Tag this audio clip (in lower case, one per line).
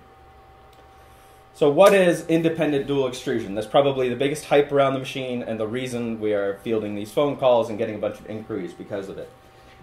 speech